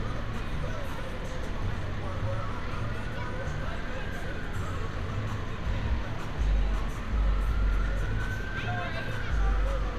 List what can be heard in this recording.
engine of unclear size, siren, person or small group talking